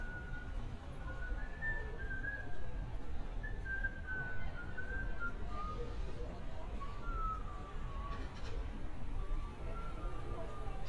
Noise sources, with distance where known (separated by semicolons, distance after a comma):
unidentified human voice